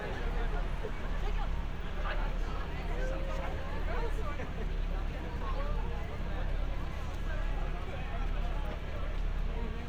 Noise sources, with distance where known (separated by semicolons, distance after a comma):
person or small group talking, near